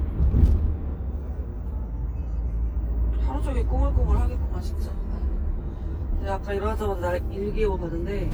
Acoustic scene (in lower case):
car